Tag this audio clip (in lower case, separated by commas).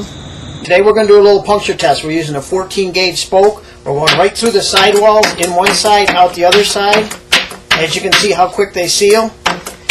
speech